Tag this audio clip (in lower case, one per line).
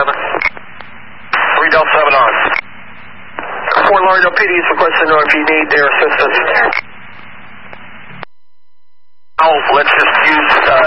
police radio chatter